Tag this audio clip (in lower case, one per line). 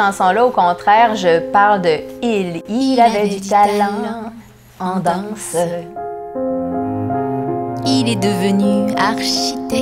speech
music